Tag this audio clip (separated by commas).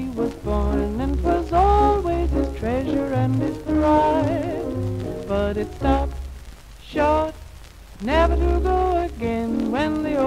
Music